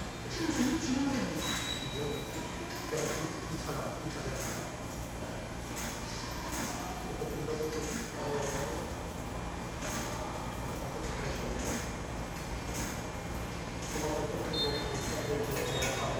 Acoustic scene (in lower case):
subway station